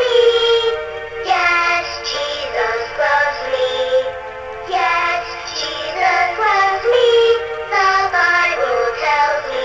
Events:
0.0s-0.7s: synthetic singing
0.0s-9.6s: music
1.2s-4.1s: synthetic singing
4.7s-7.4s: synthetic singing
7.7s-9.6s: synthetic singing

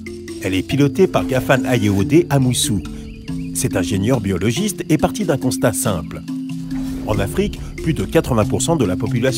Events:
0.0s-9.3s: music
0.3s-2.7s: man speaking
3.4s-6.0s: man speaking
7.0s-7.5s: man speaking
7.7s-9.3s: man speaking

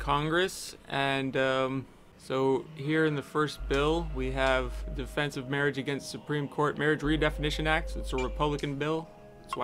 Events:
0.0s-0.7s: man speaking
0.0s-9.6s: mechanisms
0.9s-1.8s: man speaking
2.1s-2.6s: man speaking
2.2s-9.6s: music
2.7s-4.0s: man speaking
3.7s-3.8s: tick
4.1s-4.8s: man speaking
4.4s-4.5s: tick
4.9s-9.1s: man speaking
8.6s-8.7s: tick
9.5s-9.5s: beep

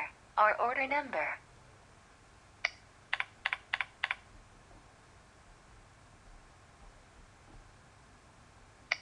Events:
0.0s-0.2s: woman speaking
0.0s-9.0s: mechanisms
0.4s-1.4s: woman speaking
2.6s-2.8s: computer keyboard
3.1s-3.3s: computer keyboard
3.5s-3.6s: computer keyboard
3.7s-3.9s: computer keyboard
4.0s-4.2s: computer keyboard
8.9s-9.0s: computer keyboard

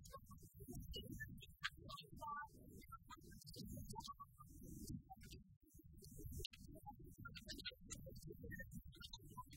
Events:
0.0s-9.5s: sound effect
2.2s-2.4s: female speech

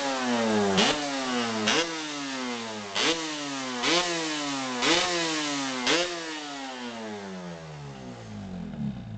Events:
0.0s-9.1s: motorcycle
0.7s-1.0s: revving
1.6s-1.9s: revving
2.9s-3.2s: revving
3.8s-4.0s: revving
4.8s-5.0s: revving
5.8s-6.1s: revving

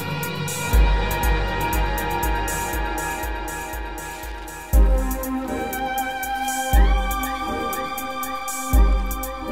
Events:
0.0s-9.5s: music
4.1s-4.6s: bicycle

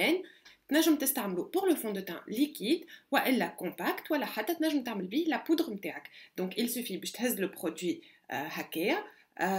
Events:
0.0s-0.3s: female speech
0.0s-9.5s: background noise
0.2s-0.4s: breathing
0.4s-0.5s: tick
0.6s-2.8s: female speech
2.8s-3.1s: breathing
3.1s-6.0s: female speech
6.0s-6.3s: breathing
6.3s-8.0s: female speech
8.0s-8.2s: breathing
8.3s-9.1s: female speech
9.1s-9.3s: breathing

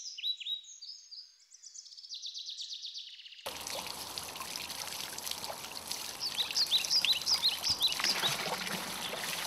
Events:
0.0s-3.4s: tweet
3.4s-9.4s: dribble
3.4s-9.4s: background noise
6.2s-8.3s: tweet
8.0s-9.4s: slosh

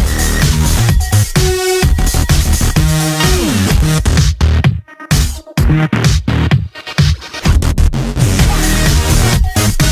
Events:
0.0s-9.9s: music

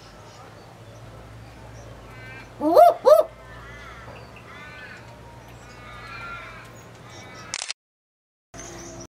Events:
0.0s-1.1s: bird song
0.0s-7.7s: wind
1.3s-1.9s: bird song
2.0s-2.5s: animal
2.4s-2.5s: bird song
2.6s-3.2s: owl
3.2s-4.2s: animal
4.0s-4.4s: bird song
4.4s-5.4s: animal
4.9s-5.1s: generic impact sounds
5.3s-5.8s: bird song
5.6s-6.7s: animal
6.6s-7.0s: generic impact sounds
6.7s-7.5s: bird song
7.0s-7.5s: animal
7.5s-7.7s: camera
8.5s-9.0s: bird song
8.5s-9.0s: mechanisms

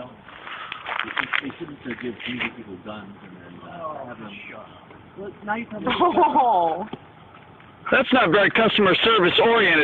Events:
0.0s-9.8s: background noise
0.3s-1.4s: generic impact sounds
1.0s-9.8s: conversation
1.0s-3.2s: man speaking
1.8s-2.4s: generic impact sounds
3.6s-4.7s: man speaking
5.1s-6.1s: man speaking
6.0s-6.9s: giggle
6.8s-7.0s: generic impact sounds
7.8s-9.8s: man speaking

